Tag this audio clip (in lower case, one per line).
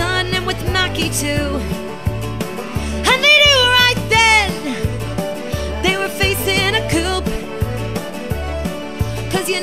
music